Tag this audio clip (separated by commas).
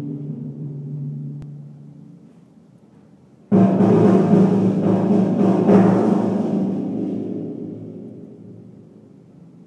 playing timpani